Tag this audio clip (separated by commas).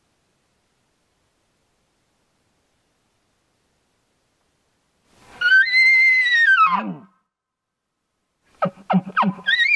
elk bugling